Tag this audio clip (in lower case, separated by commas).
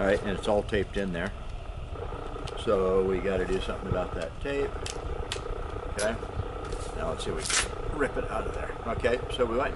speech